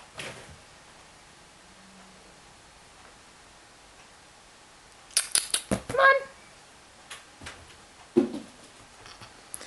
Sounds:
speech

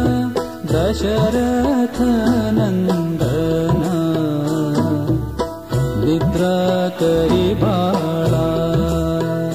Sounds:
music
lullaby

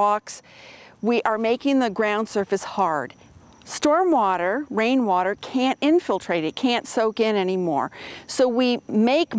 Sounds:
speech

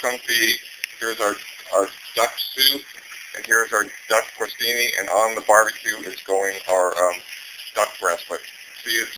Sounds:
speech

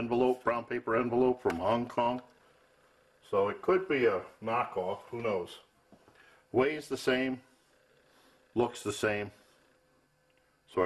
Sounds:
speech

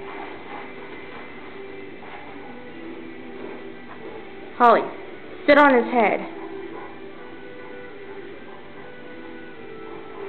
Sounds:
speech
music

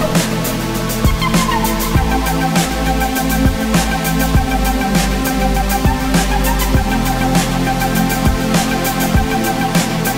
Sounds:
music

